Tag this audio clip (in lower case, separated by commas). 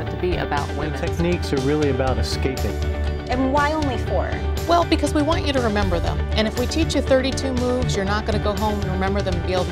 music, television, speech